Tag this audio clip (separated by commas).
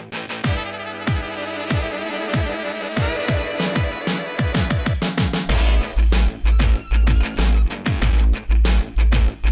Music